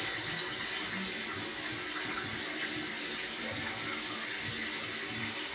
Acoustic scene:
restroom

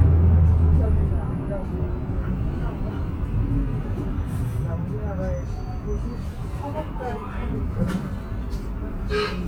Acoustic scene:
bus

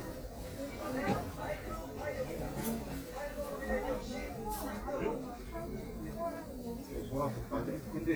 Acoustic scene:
crowded indoor space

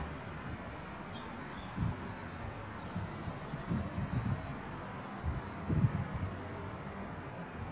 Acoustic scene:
residential area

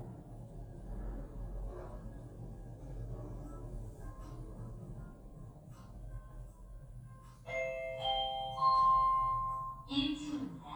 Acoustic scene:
elevator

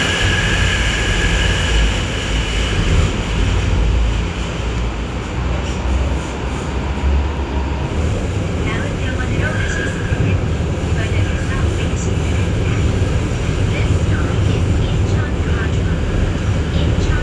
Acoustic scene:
subway train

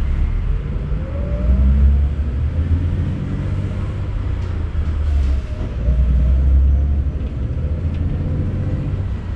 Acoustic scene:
bus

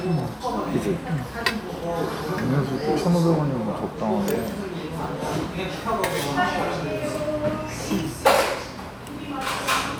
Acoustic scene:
crowded indoor space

